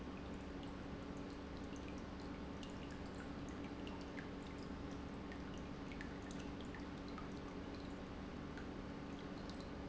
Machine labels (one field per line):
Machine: pump